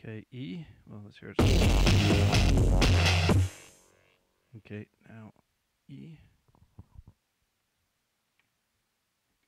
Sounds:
speech
music
sampler

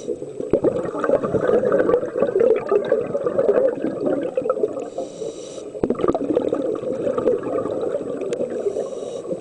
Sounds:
gurgling

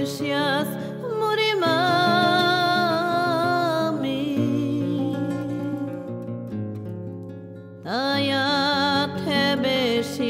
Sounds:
music

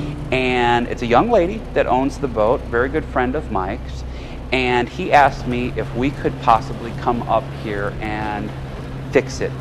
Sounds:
speedboat
vehicle
speech

